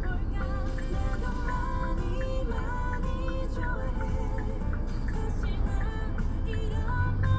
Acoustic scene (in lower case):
car